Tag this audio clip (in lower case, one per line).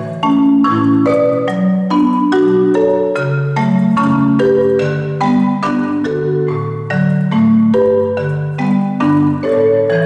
marimba
playing marimba
music